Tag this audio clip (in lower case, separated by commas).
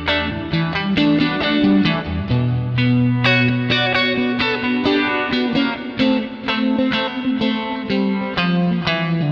music, effects unit